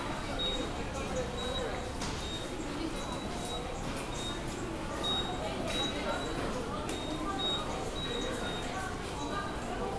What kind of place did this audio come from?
subway station